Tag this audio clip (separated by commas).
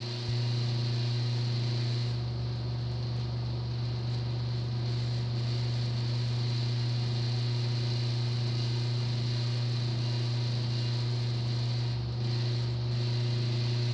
Engine, Mechanisms, Mechanical fan